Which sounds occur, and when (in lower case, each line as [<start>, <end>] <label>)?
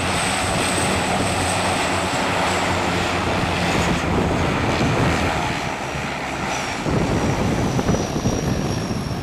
[0.00, 9.22] fixed-wing aircraft
[6.79, 9.22] wind noise (microphone)